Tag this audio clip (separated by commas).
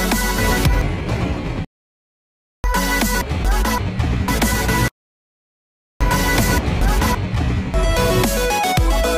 Music